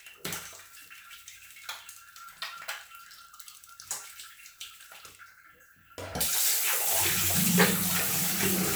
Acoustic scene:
restroom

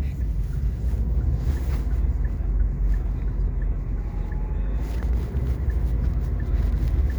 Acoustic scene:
car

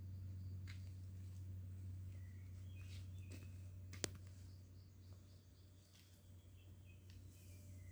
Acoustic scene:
park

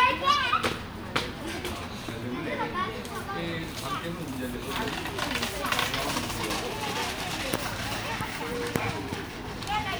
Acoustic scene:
park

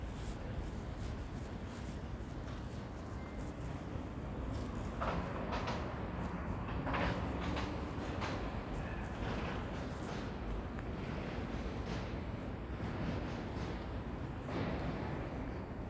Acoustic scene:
residential area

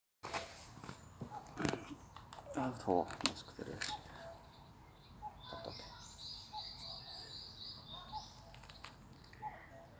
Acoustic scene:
park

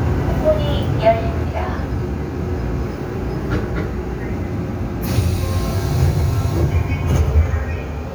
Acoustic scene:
subway train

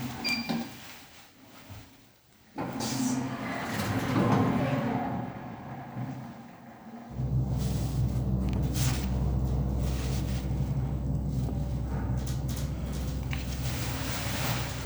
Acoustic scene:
elevator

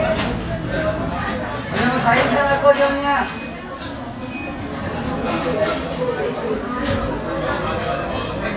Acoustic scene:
restaurant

